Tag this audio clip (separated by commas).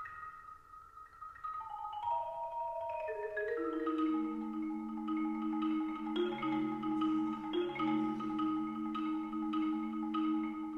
Music, Percussion